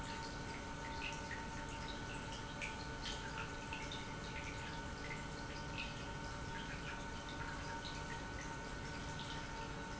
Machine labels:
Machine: pump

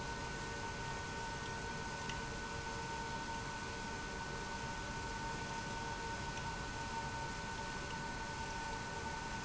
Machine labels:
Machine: pump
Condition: abnormal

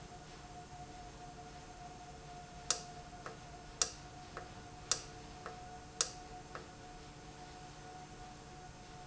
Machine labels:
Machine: valve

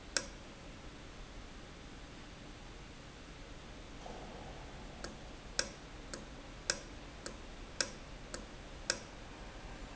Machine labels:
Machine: valve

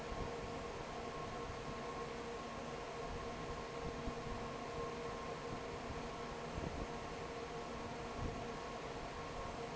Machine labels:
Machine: fan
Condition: normal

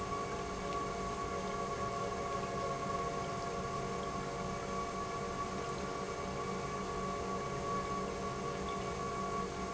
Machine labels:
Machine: pump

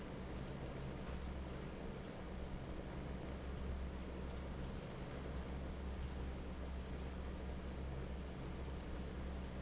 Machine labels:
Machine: fan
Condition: normal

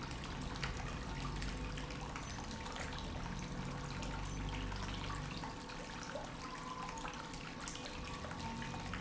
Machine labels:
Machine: pump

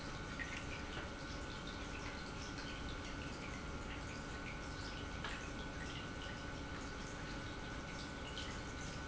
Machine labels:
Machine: pump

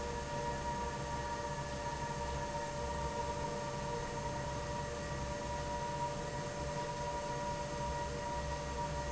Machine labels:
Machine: fan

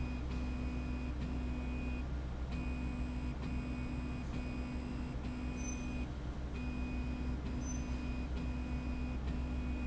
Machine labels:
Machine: slide rail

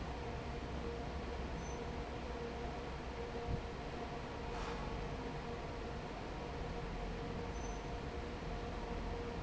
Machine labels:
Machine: fan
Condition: normal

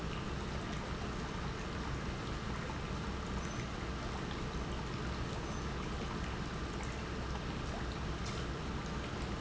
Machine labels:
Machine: pump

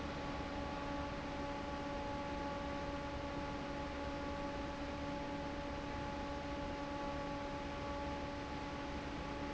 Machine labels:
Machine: fan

